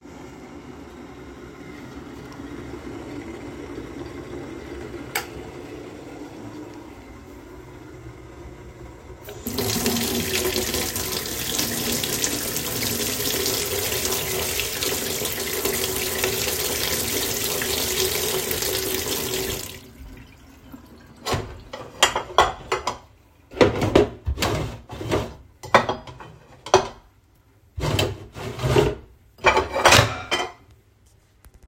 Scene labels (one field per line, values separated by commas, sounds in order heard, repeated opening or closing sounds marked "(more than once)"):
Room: kitchen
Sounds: light switch, running water, cutlery and dishes, wardrobe or drawer (more than once)